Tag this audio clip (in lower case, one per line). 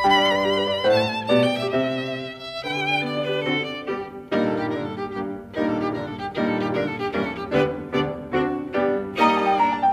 violin
music
piano
classical music